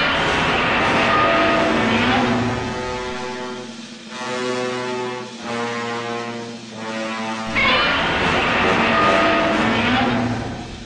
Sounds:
Music

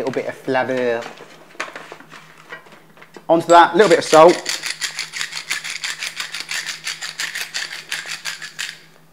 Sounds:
Speech

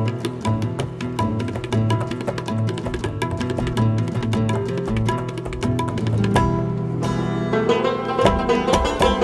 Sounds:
Bluegrass, Banjo

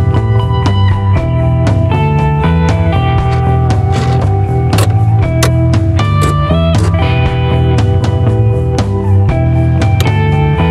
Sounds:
Music

